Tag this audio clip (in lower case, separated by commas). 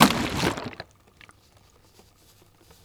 liquid